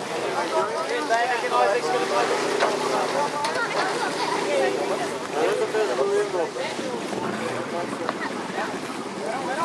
A group of people talking near splashing water, with water vehicles in the background